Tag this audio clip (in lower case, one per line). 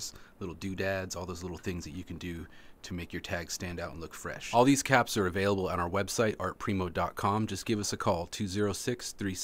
speech